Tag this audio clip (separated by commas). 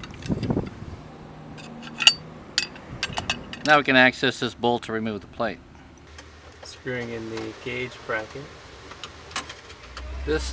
Speech